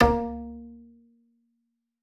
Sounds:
Bowed string instrument, Musical instrument, Music

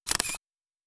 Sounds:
Mechanisms, Camera

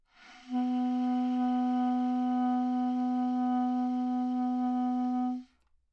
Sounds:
Music, woodwind instrument, Musical instrument

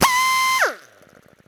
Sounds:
Power tool, Drill, Tools

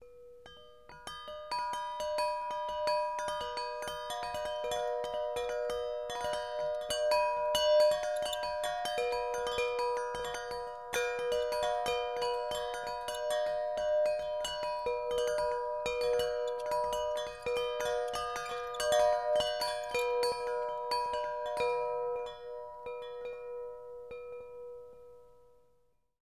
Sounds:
Chime, Wind chime, Bell

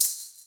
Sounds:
Rattle (instrument), Musical instrument, Percussion, Music

